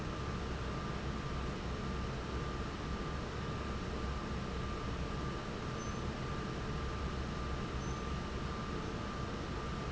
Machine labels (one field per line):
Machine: fan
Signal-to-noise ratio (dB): -6 dB